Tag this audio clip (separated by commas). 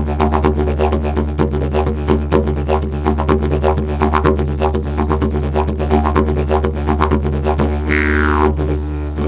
playing didgeridoo